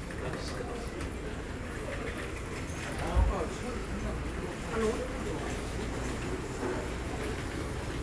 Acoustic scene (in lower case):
crowded indoor space